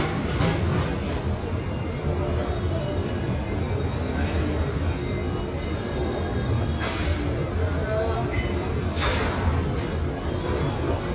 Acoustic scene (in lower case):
restaurant